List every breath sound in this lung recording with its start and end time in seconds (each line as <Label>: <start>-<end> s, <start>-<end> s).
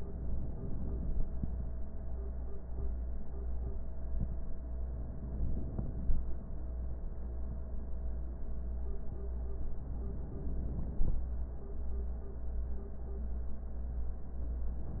Inhalation: 4.99-6.39 s, 9.81-11.21 s